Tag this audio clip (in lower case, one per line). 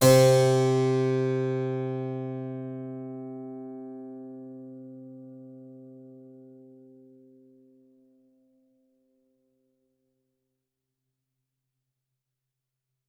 music
musical instrument
keyboard (musical)